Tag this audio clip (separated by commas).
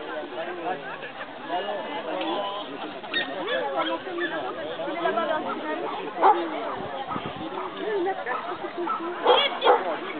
Speech